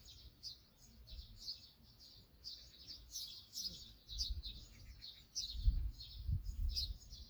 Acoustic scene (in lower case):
park